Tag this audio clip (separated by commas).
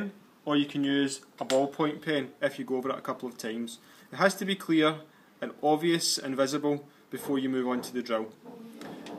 Tick, Speech